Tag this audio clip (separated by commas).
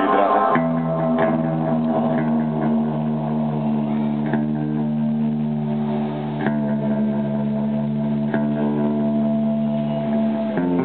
Music, Speech, Echo